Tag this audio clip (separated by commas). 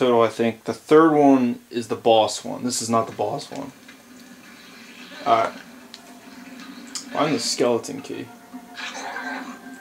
Speech